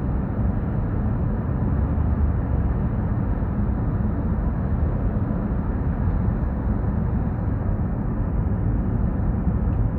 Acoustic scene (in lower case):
car